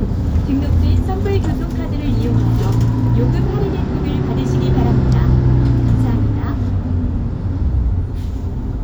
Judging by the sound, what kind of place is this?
bus